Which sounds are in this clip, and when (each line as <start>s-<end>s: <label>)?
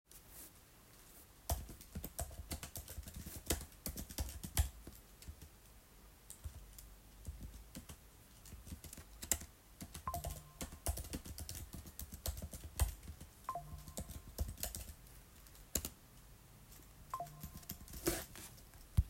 1.4s-4.8s: keyboard typing
6.3s-15.4s: keyboard typing
10.0s-10.3s: phone ringing
13.4s-13.6s: phone ringing
15.7s-16.0s: keyboard typing
16.6s-19.1s: keyboard typing
17.0s-17.3s: phone ringing